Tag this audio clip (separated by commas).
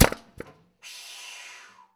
Tools